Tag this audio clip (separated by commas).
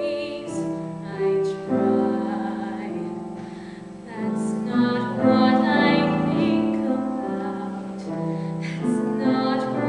Female singing, Music